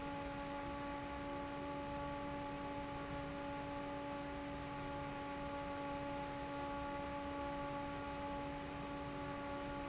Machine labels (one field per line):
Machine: fan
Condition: normal